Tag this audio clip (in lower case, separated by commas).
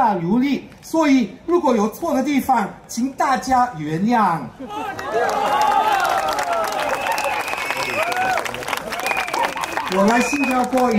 narration, speech, man speaking